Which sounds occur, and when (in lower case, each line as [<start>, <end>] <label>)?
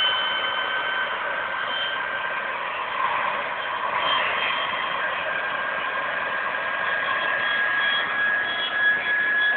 [0.00, 9.55] jet engine